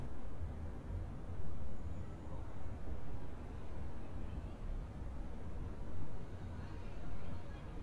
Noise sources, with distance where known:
background noise

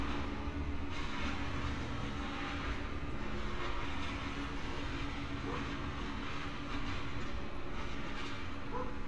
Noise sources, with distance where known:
dog barking or whining, far

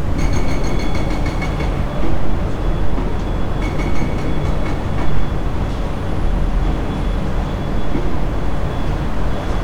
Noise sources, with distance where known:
hoe ram, near

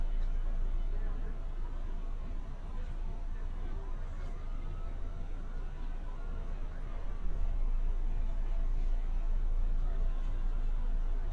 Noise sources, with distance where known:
siren, far

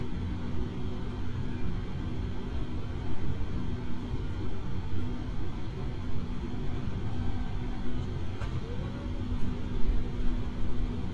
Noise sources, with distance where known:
engine of unclear size, near; car horn, near; person or small group talking, far

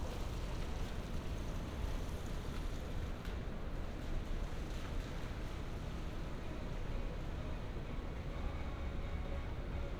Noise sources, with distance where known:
music from a moving source, far

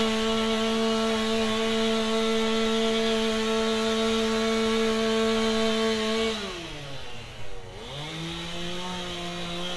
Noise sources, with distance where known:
unidentified powered saw

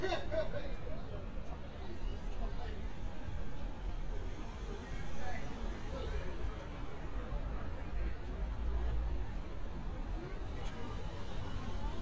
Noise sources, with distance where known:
person or small group talking

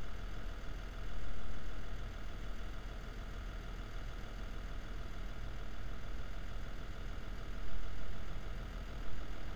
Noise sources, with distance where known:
background noise

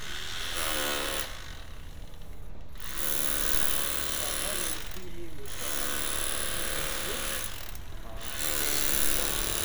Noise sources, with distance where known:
chainsaw, near

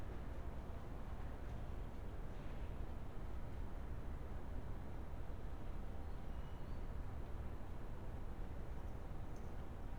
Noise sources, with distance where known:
background noise

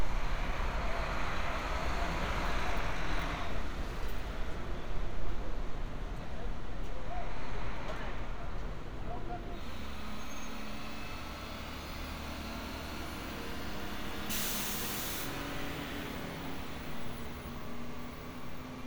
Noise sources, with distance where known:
large-sounding engine

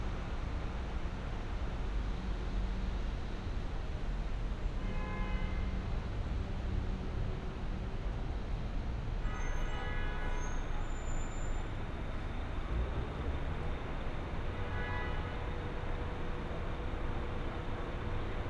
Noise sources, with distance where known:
car horn

